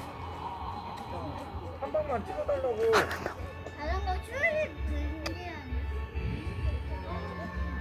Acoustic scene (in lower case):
park